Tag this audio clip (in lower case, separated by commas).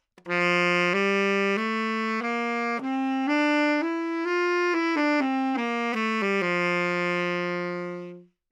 woodwind instrument, musical instrument, music